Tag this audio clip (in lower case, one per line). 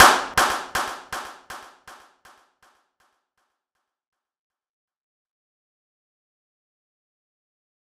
clapping
hands